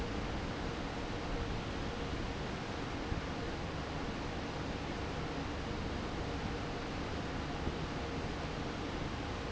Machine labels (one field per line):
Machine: fan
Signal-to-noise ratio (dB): -6 dB